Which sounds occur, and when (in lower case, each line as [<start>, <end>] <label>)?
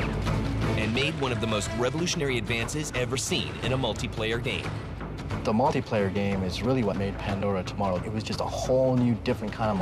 [0.00, 0.13] gunfire
[0.00, 9.81] music
[0.00, 9.81] video game sound
[0.55, 4.61] man speaking
[5.34, 9.81] man speaking